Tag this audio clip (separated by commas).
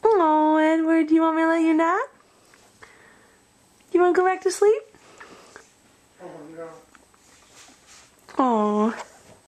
Speech